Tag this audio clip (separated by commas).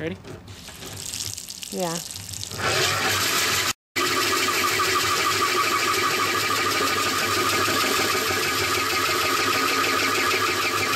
Drill, Speech